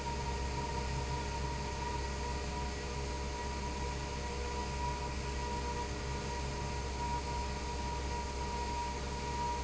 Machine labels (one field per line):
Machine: fan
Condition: abnormal